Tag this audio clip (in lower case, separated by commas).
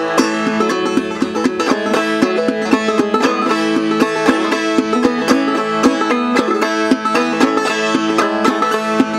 music, mandolin